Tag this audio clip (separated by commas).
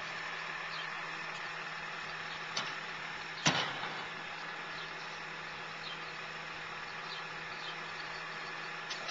Truck, Vehicle